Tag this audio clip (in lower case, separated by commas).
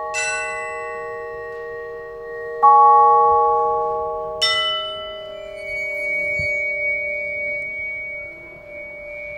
music, musical instrument